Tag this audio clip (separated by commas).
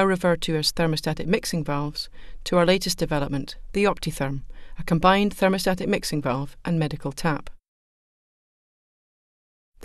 Speech